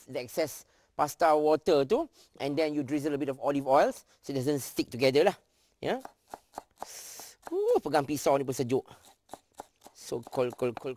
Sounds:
speech

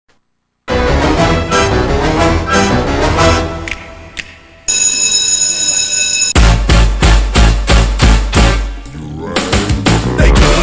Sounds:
music

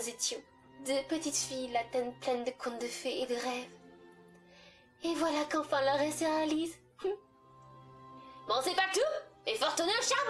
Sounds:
music
speech

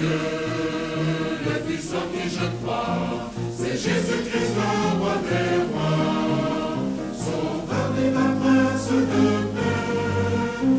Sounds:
mantra
music

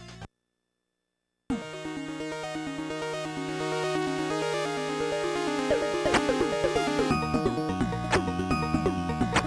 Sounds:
music

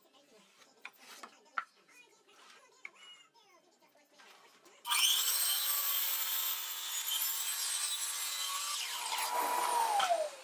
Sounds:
speech

